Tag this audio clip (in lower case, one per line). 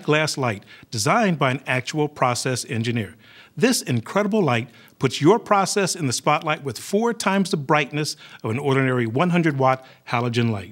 speech